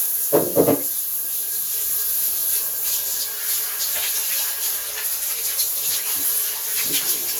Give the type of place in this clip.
restroom